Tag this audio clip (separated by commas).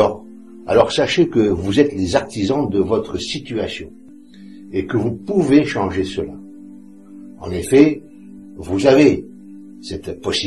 Music, Speech